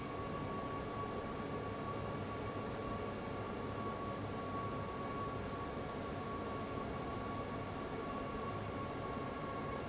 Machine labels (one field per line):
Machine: fan